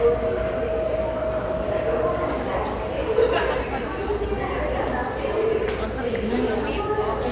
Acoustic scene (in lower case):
subway station